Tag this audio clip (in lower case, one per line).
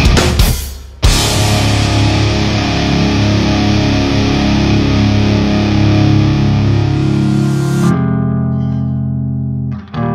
music
bass guitar
electronic tuner